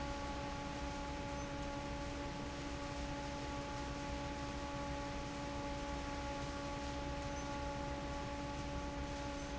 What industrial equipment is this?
fan